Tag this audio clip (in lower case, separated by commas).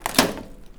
home sounds, microwave oven